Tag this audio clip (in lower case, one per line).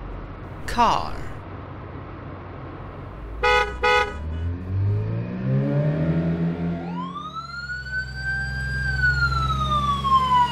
vehicle horn